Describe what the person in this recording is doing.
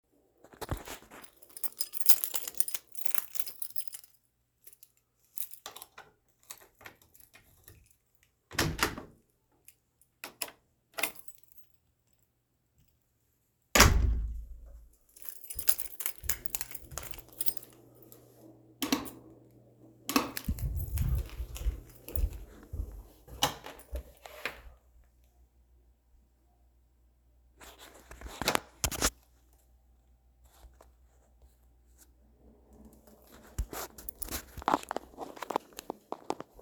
Took keychain out of pocket, put key in lock, opened door, closed door, turned on light switch.